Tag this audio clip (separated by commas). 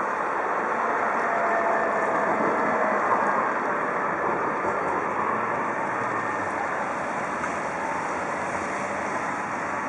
Vehicle